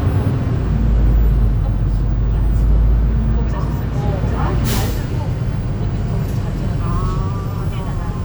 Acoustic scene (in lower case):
bus